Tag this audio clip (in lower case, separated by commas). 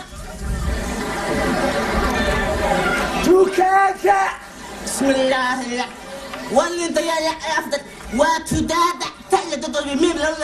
speech, inside a public space